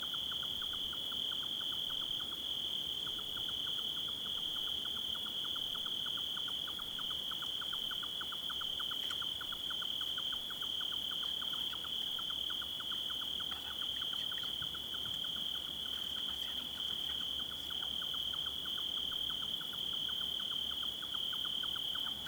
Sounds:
Wild animals, Insect, Cricket, Animal

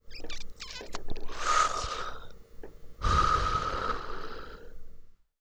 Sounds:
Breathing, Respiratory sounds

